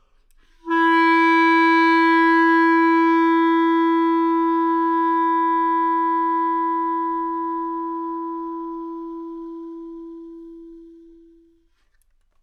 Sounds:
woodwind instrument
musical instrument
music

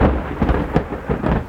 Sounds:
thunder
thunderstorm

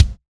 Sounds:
percussion
music
musical instrument
bass drum
drum

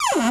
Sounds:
cupboard open or close
home sounds

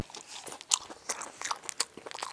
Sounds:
chewing

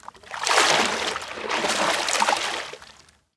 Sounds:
splatter
liquid

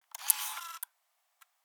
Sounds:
camera
mechanisms

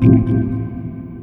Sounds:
music
keyboard (musical)
organ
musical instrument

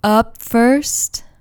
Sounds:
human voice
speech
woman speaking

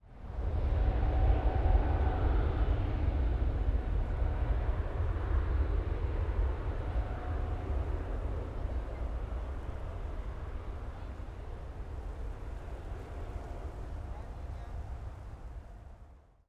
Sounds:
aircraft
vehicle

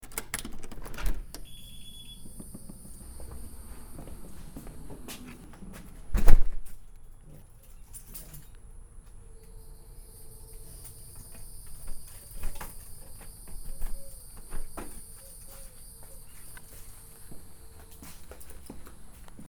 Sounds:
alarm
insect
wild animals
animal

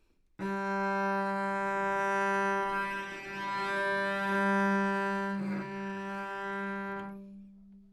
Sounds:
musical instrument
music
bowed string instrument

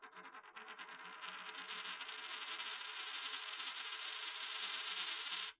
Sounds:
domestic sounds
coin (dropping)

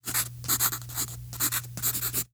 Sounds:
writing
home sounds

